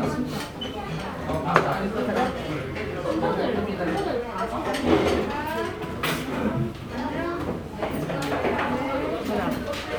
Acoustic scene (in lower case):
restaurant